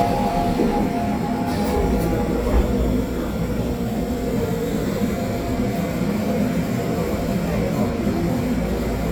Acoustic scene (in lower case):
subway train